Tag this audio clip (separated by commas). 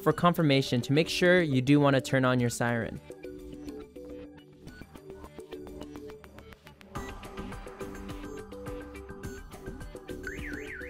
Speech, Music